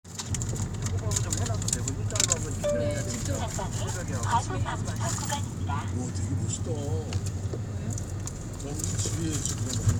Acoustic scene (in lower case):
car